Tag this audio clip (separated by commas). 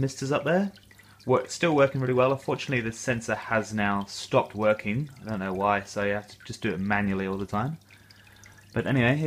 Speech